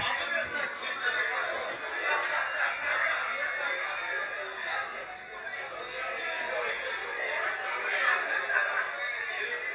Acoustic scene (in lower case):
crowded indoor space